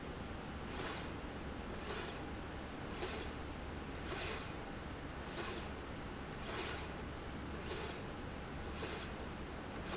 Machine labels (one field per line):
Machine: slide rail